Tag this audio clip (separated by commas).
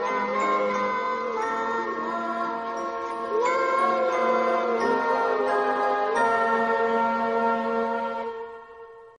Music, Lullaby